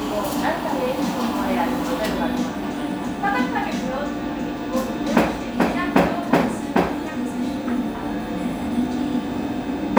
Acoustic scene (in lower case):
cafe